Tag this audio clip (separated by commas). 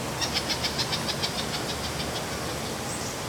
Animal, Water, Wild animals, Bird